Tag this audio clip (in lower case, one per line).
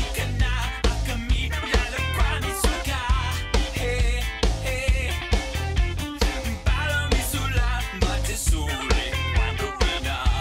music